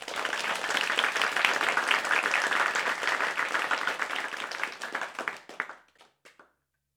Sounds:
applause
crowd
human group actions

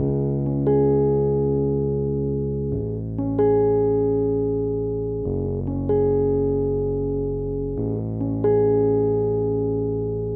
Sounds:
music
musical instrument
keyboard (musical)
piano

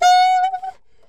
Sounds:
musical instrument
music
woodwind instrument

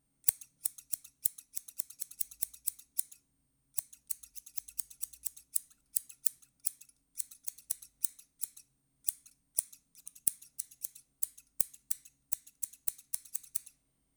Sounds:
domestic sounds
scissors

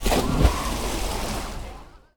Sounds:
splatter
liquid

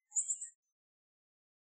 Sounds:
bird
bird song
animal
tweet
wild animals

